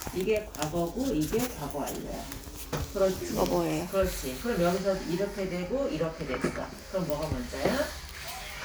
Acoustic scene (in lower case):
crowded indoor space